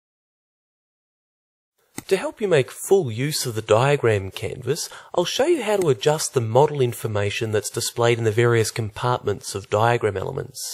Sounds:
Speech

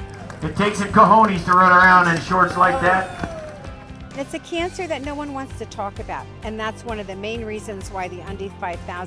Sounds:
Run, Music, Speech

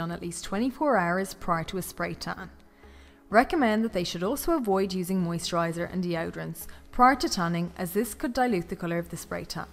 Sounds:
Speech, Music

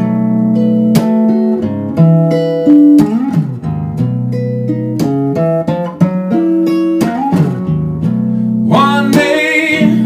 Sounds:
Music

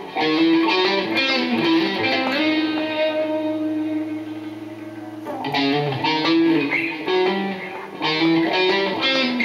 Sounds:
Acoustic guitar, Strum, Plucked string instrument, Music, Musical instrument, Guitar

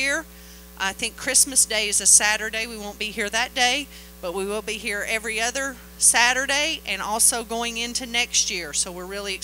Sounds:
Speech

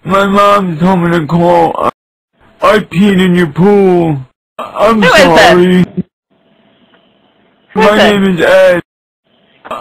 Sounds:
Speech

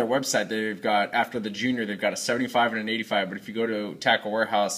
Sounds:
Speech

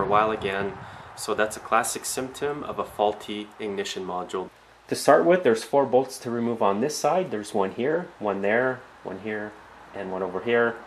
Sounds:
Speech

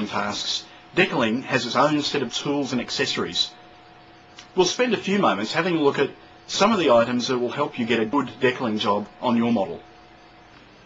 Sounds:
Speech

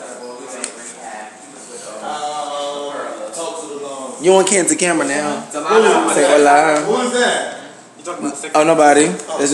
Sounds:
Speech

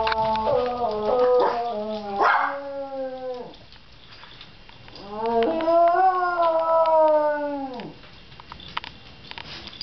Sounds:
canids, pets, Dog, Animal

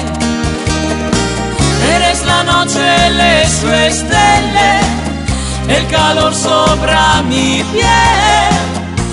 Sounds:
Music, inside a large room or hall

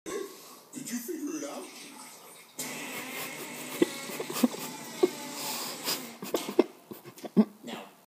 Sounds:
Speech, Music

